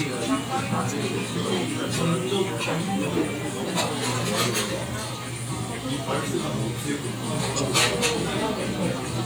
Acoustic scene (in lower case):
crowded indoor space